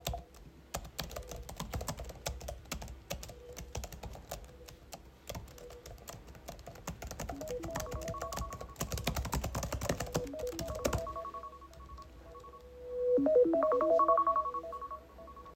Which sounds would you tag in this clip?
keyboard typing, phone ringing